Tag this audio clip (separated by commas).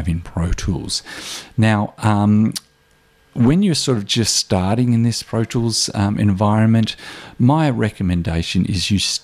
Speech